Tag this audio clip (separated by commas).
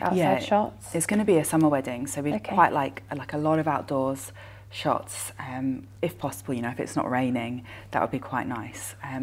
inside a small room, Speech